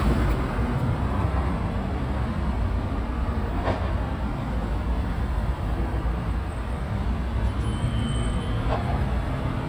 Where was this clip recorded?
on a street